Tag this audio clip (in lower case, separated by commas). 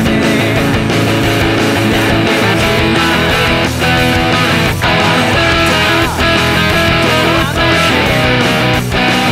music, electric guitar, plucked string instrument, guitar, strum, acoustic guitar, musical instrument